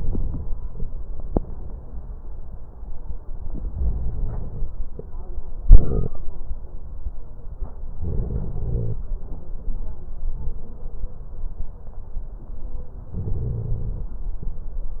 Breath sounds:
Inhalation: 3.74-4.68 s, 8.03-8.96 s, 13.19-14.12 s

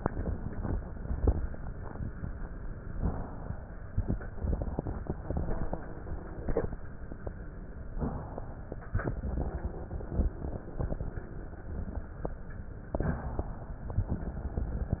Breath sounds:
Inhalation: 2.89-3.96 s, 7.88-8.96 s, 12.89-13.96 s

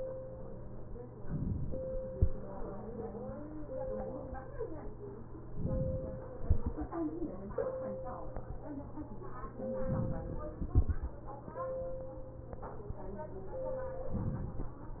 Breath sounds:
Inhalation: 1.26-2.11 s, 5.56-6.41 s, 9.77-10.62 s

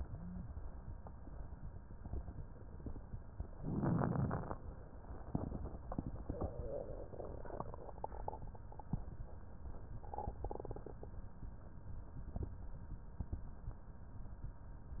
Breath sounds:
Inhalation: 3.58-4.62 s
Crackles: 3.58-4.62 s

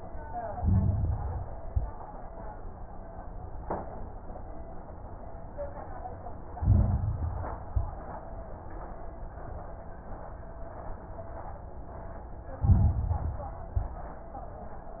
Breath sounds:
Inhalation: 0.49-1.59 s, 6.54-7.64 s, 12.56-13.66 s
Exhalation: 1.63-2.09 s, 7.68-8.13 s, 13.68-14.14 s
Crackles: 0.49-1.59 s, 1.63-2.09 s, 6.54-7.64 s, 7.68-8.13 s, 12.56-13.66 s, 13.68-14.14 s

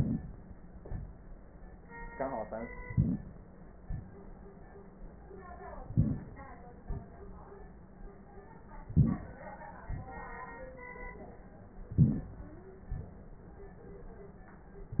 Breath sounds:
Inhalation: 2.85-3.46 s, 5.90-6.51 s, 8.92-9.39 s, 12.01-12.54 s
Exhalation: 3.81-4.74 s, 6.87-7.76 s, 9.89-10.46 s

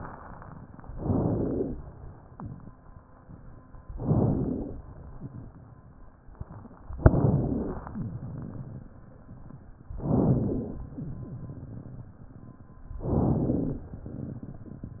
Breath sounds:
Inhalation: 0.89-1.71 s, 3.97-4.78 s, 6.98-7.80 s, 9.98-10.80 s, 13.04-13.85 s

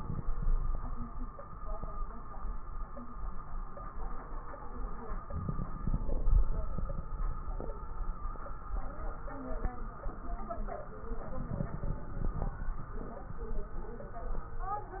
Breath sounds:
Inhalation: 5.25-6.71 s, 11.28-12.73 s
Crackles: 5.25-6.71 s, 11.28-12.73 s

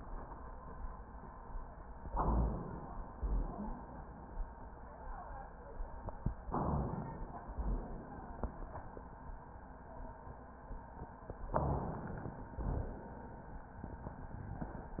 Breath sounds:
Inhalation: 2.06-3.08 s, 6.52-7.54 s, 11.50-12.54 s
Exhalation: 3.20-4.22 s, 7.58-8.76 s, 12.58-13.62 s
Wheeze: 3.27-4.01 s
Rhonchi: 2.05-2.53 s, 3.11-3.59 s, 11.47-11.91 s, 12.59-13.03 s

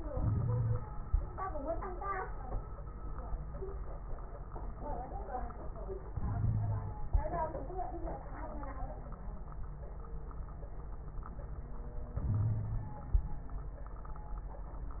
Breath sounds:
Inhalation: 0.11-0.84 s, 6.11-6.97 s, 12.20-13.06 s
Wheeze: 0.11-0.84 s, 6.11-6.97 s, 12.33-12.97 s

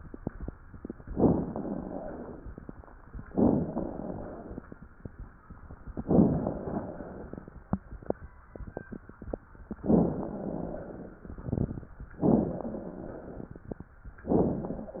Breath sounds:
Inhalation: 1.04-2.54 s, 3.26-4.65 s, 6.11-7.50 s, 9.85-11.23 s, 12.26-13.68 s
Rhonchi: 1.31-2.45 s, 3.64-4.44 s, 6.62-7.42 s, 10.25-11.04 s, 12.62-13.23 s

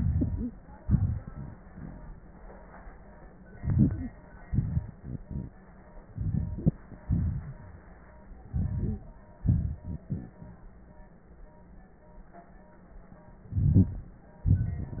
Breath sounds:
Inhalation: 3.55-4.06 s, 6.11-6.76 s, 8.52-9.05 s, 13.49-14.17 s
Exhalation: 0.82-1.54 s, 4.46-4.97 s, 7.08-7.61 s, 9.41-9.81 s
Rhonchi: 13.53-14.21 s

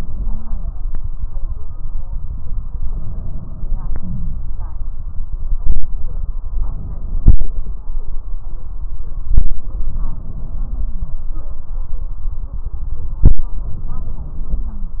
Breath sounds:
Inhalation: 2.86-4.46 s, 6.60-7.75 s, 9.33-11.23 s, 13.19-15.00 s
Wheeze: 4.00-4.46 s, 10.69-11.23 s, 14.56-15.00 s
Stridor: 0.17-0.73 s

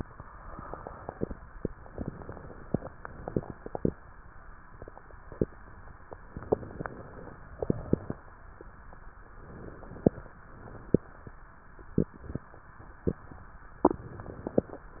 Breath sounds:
Inhalation: 6.37-7.38 s, 9.33-10.35 s, 13.81-14.84 s
Exhalation: 7.50-8.28 s, 10.44-11.46 s, 14.90-15.00 s
Crackles: 6.37-7.38 s, 7.50-8.28 s, 9.33-10.35 s, 10.44-11.46 s, 13.81-14.84 s, 14.90-15.00 s

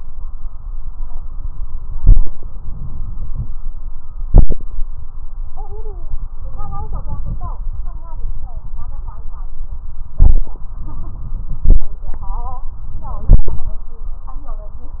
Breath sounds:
Inhalation: 2.46-3.50 s, 6.50-7.53 s, 10.69-11.53 s

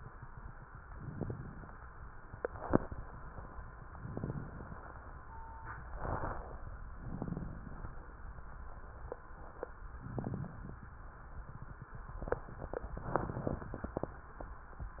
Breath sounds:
Inhalation: 0.85-1.74 s, 3.85-5.11 s, 6.94-8.22 s, 9.90-10.95 s
Exhalation: 2.22-3.48 s, 5.85-6.60 s
Crackles: 0.85-1.74 s, 3.85-5.11 s, 5.85-6.60 s, 6.94-8.22 s, 9.90-10.95 s

